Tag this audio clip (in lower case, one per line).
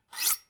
home sounds
cutlery